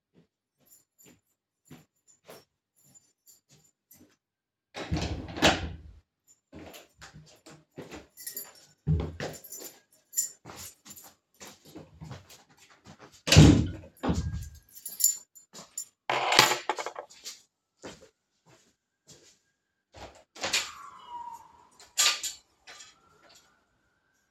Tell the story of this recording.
I unlocked the front door, opened the door then I entered the hallway, I have then closed the door behind me, I have then placed a keychain on a desk, then I went over to the living room and opened a window.